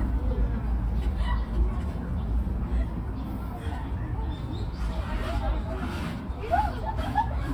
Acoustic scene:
park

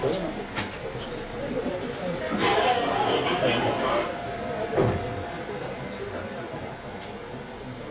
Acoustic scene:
subway train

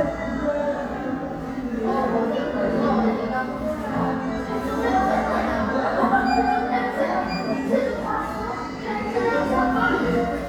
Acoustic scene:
crowded indoor space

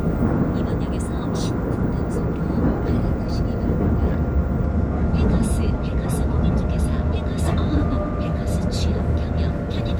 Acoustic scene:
subway train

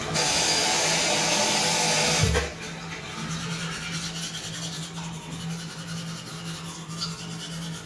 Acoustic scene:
restroom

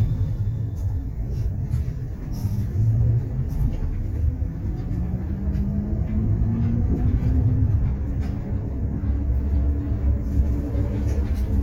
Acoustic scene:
bus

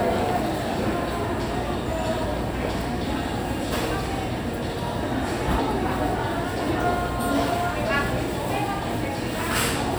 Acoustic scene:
restaurant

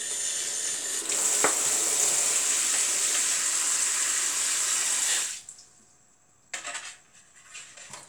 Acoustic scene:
kitchen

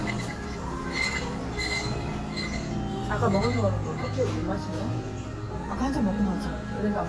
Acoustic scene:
cafe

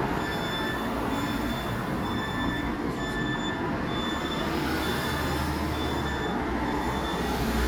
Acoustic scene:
residential area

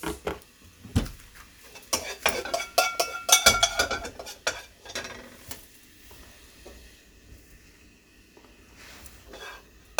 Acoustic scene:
kitchen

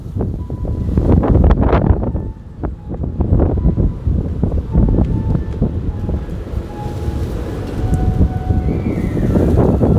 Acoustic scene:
park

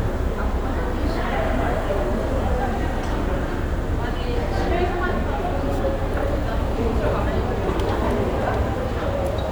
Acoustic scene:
crowded indoor space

